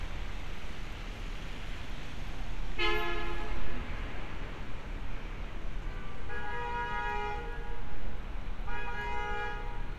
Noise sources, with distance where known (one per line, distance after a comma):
car horn, near